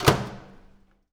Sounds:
home sounds
slam
door
microwave oven

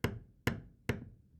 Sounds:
tools
hammer

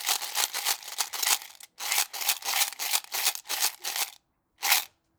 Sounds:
rattle

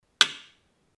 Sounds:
thud

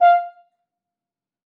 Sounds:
music
musical instrument
brass instrument

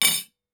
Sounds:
dishes, pots and pans
cutlery
domestic sounds

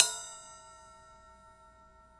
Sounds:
bell

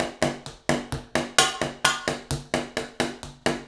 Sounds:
percussion
musical instrument
drum kit
music

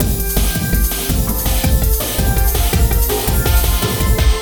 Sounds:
percussion
musical instrument
drum kit
music

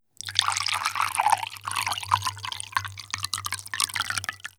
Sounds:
fill (with liquid)
liquid

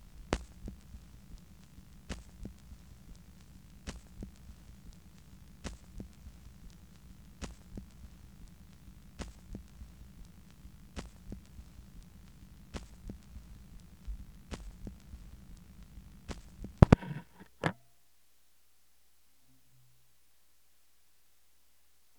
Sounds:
crackle

